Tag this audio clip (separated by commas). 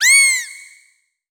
Animal